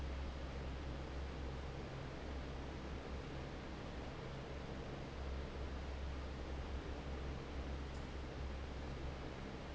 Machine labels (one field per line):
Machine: fan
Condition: normal